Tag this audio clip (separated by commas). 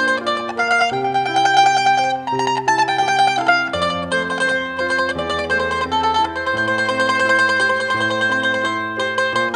Music, Mandolin